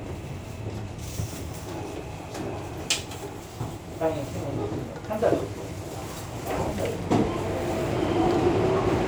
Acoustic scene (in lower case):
subway station